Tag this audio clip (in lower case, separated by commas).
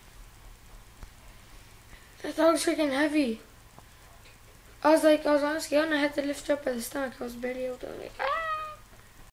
speech